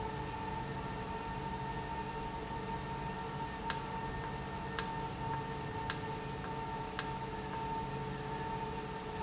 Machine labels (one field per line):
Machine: valve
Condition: normal